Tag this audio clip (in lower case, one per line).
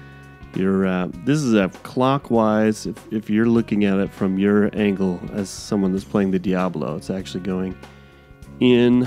music
speech